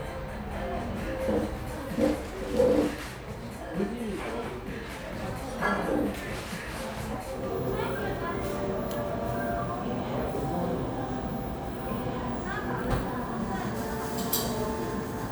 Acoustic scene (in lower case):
cafe